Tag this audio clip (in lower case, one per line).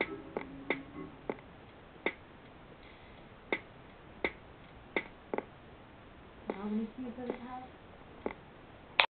speech
music